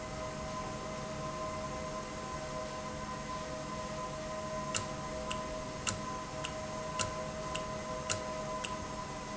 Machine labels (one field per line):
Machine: valve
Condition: normal